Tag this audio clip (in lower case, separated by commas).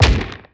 gunfire, explosion